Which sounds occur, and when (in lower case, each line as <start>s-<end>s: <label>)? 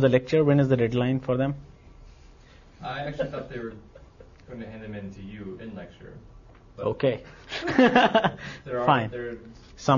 0.0s-1.6s: man speaking
0.0s-9.9s: background noise
0.0s-9.9s: conversation
2.1s-2.8s: breathing
2.8s-3.8s: man speaking
4.4s-6.2s: man speaking
6.8s-7.2s: man speaking
7.2s-7.6s: breathing
7.5s-8.4s: giggle
8.4s-8.7s: breathing
8.7s-9.4s: man speaking
9.5s-9.8s: breathing
9.8s-9.9s: man speaking